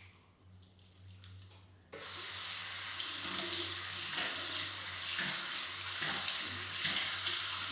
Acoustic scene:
restroom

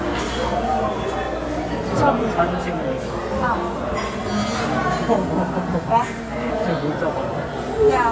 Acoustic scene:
cafe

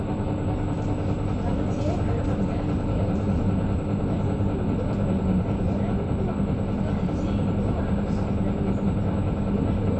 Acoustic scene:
bus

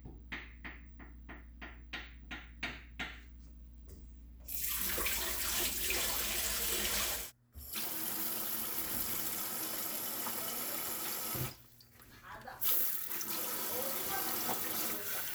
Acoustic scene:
kitchen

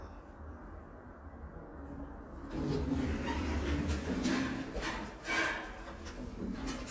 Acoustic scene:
elevator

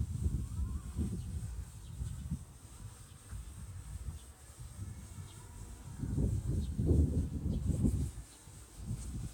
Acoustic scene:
park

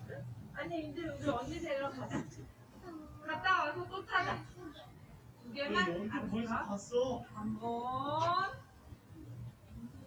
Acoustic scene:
residential area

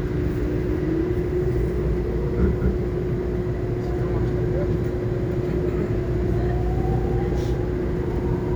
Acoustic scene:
subway train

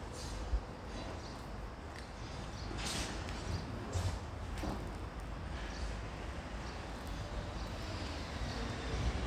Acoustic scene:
residential area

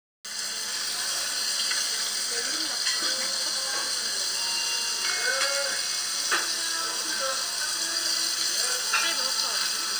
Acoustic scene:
restaurant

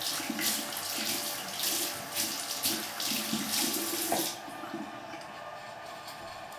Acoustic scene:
restroom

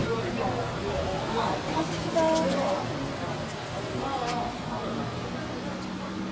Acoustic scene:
street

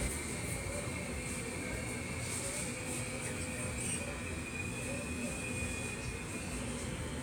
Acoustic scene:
subway station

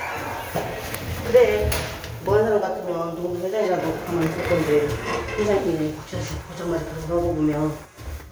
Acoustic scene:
elevator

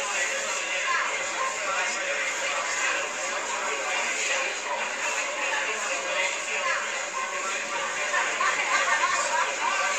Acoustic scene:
crowded indoor space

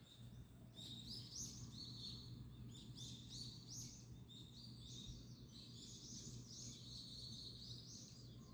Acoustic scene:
park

